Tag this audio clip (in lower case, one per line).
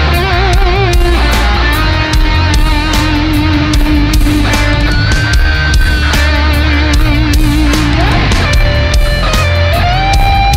music
musical instrument
plucked string instrument
guitar
acoustic guitar